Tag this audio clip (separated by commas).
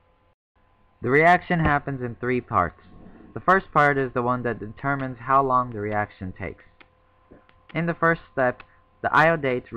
Speech